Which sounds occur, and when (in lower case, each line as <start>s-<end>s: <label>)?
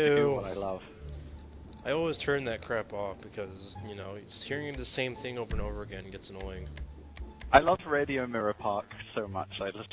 0.0s-0.8s: man speaking
0.0s-9.9s: conversation
0.0s-9.9s: music
0.0s-9.9s: video game sound
1.0s-1.2s: clicking
1.4s-1.7s: clicking
1.8s-6.7s: man speaking
4.6s-4.8s: clicking
5.4s-5.5s: clicking
6.2s-6.4s: clicking
6.7s-6.8s: clicking
7.1s-7.2s: clicking
7.4s-7.5s: clicking
7.5s-9.9s: man speaking